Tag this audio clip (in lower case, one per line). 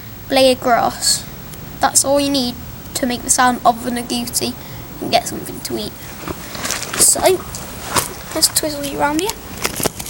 speech